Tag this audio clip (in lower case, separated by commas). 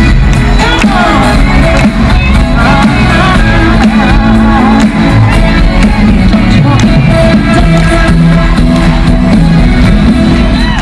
singing, music, pop music